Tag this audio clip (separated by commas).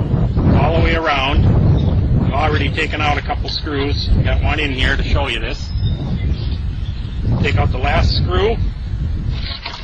Speech